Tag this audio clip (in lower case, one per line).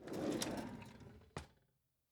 domestic sounds
drawer open or close